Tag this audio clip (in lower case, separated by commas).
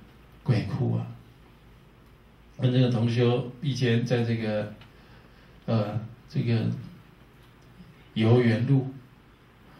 speech